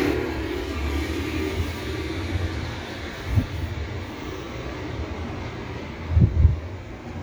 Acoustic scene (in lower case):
residential area